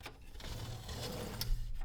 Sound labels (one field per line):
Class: window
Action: opening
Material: glass